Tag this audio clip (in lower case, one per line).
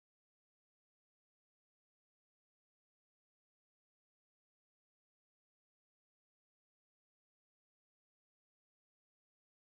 silence